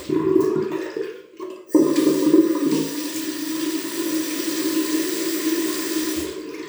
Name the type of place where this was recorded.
restroom